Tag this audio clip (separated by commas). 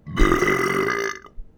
Burping